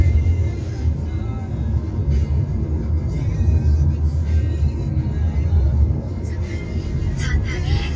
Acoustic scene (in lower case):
car